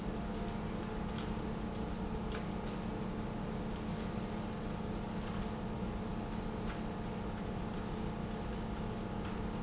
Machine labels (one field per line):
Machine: pump